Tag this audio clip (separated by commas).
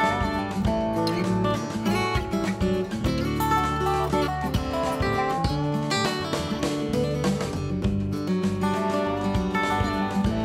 Music